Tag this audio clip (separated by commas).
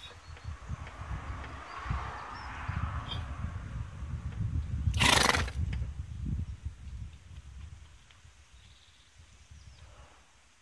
horse neighing